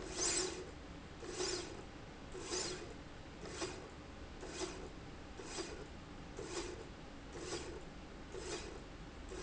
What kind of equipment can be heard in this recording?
slide rail